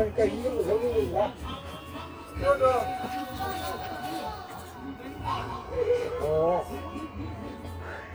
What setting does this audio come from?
park